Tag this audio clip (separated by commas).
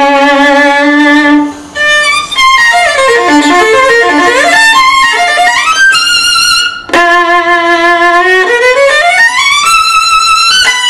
Musical instrument, Music, fiddle